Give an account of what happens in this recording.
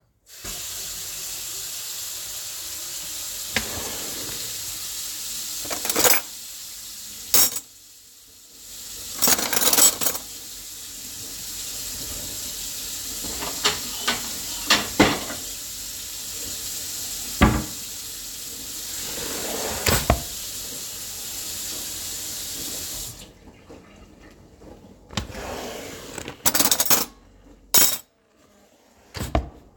I turned on the sink, opened my cutlery drawer to remove cutlery. I then opened my dish cupboard, grabbed a plate, closed it, then reopened my cutlery drawer to grab one additional article and closed it.